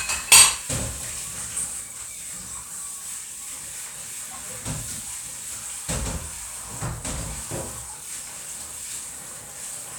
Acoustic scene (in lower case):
kitchen